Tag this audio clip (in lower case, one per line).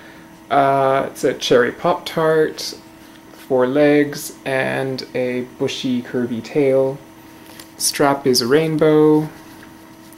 speech